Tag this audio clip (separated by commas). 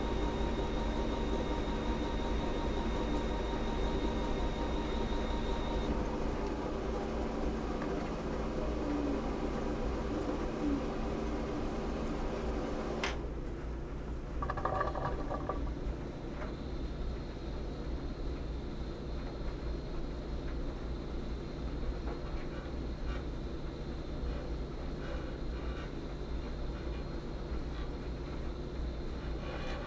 Engine